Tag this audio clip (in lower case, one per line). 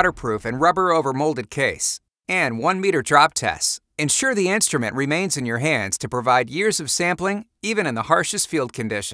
speech